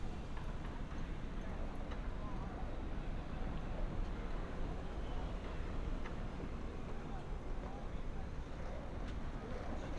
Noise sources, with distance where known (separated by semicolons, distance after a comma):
person or small group talking